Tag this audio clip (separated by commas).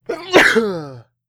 Respiratory sounds, Sneeze